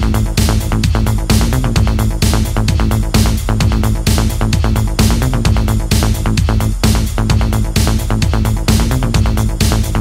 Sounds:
Music

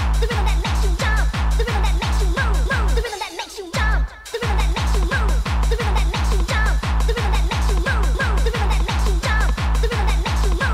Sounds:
Music

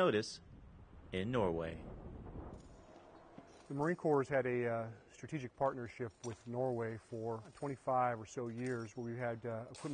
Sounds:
Speech

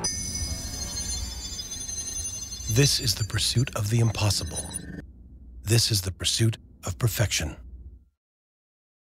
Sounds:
Speech

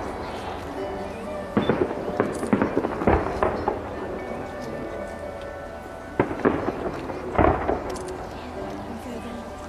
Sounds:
Fireworks, outside, urban or man-made, Speech, Music

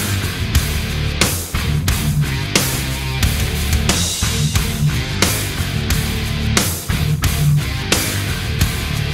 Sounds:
Punk rock, Music

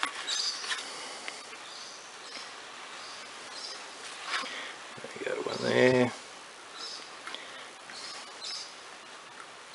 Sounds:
Speech, inside a small room

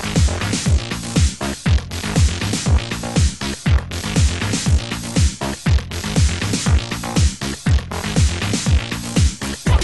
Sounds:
Music

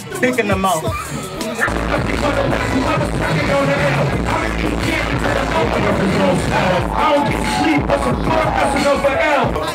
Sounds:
Speech, Music

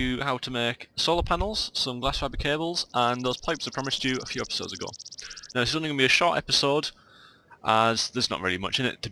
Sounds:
Speech

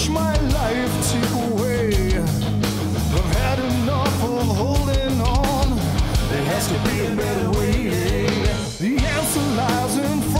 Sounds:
Music

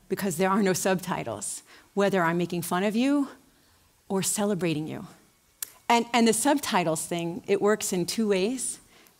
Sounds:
Speech

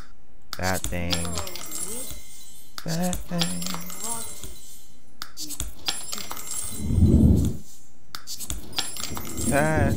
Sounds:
Speech, inside a large room or hall

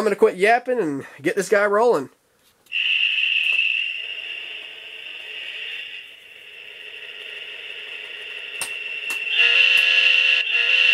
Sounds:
inside a small room, Speech, Rail transport, Train

